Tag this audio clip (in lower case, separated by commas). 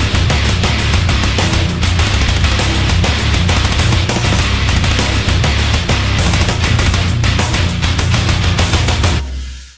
music, dance music